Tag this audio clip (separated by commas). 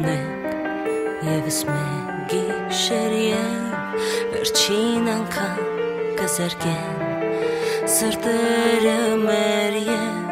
Music